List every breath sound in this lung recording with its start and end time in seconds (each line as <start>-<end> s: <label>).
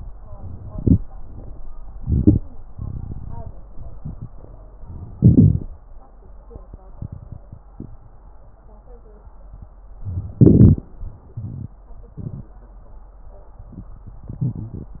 0.66-0.98 s: inhalation
2.03-2.41 s: inhalation
5.22-5.64 s: inhalation
10.44-10.86 s: inhalation
14.38-15.00 s: wheeze